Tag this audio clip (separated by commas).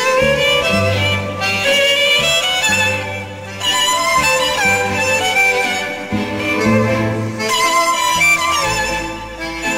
Musical instrument, String section, fiddle, Music, Bowed string instrument